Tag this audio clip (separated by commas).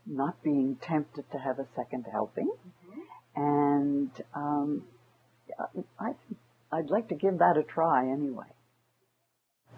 Conversation